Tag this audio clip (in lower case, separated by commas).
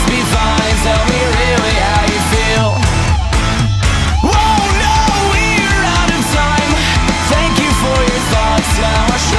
rock and roll, music, progressive rock, grunge, heavy metal, punk rock